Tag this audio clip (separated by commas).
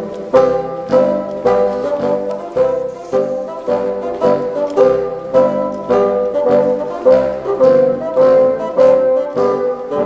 playing bassoon